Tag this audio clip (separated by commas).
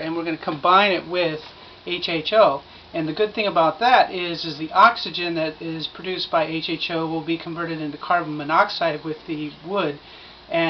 Speech